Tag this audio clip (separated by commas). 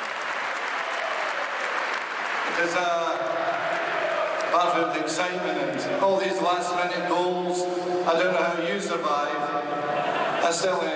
man speaking, monologue, Speech